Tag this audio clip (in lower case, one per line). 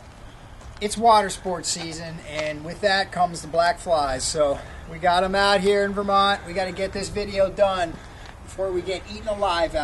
speech